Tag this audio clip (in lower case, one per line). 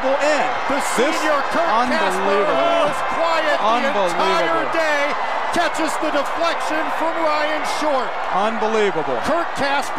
speech